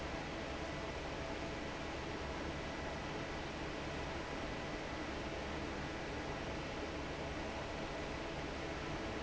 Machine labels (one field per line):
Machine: fan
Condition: normal